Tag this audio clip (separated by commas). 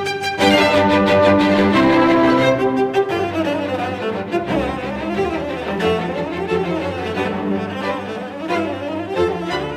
Musical instrument, Cello, fiddle, Music, Orchestra, Bowed string instrument